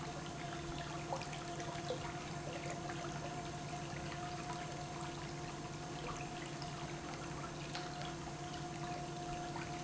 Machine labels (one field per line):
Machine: pump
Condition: normal